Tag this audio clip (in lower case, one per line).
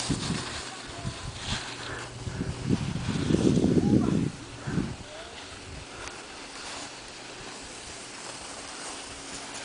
speech